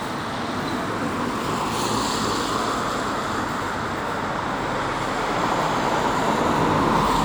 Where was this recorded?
on a street